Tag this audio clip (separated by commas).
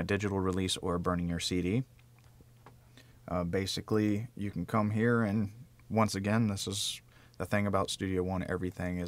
Speech